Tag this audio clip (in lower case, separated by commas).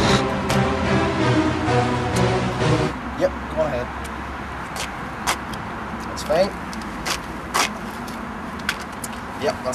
music, speech